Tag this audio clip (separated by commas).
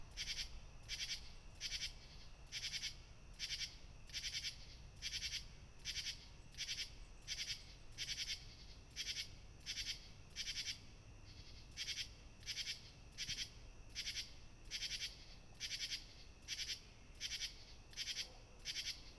Animal, Wild animals, Insect